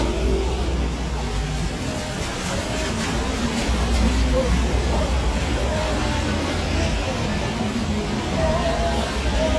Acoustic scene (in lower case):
street